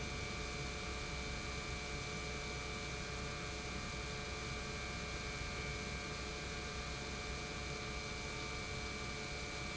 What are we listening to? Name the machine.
pump